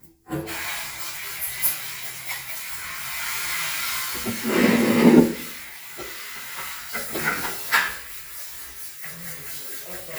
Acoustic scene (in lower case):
restroom